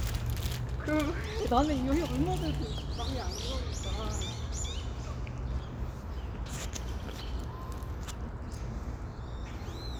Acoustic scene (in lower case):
park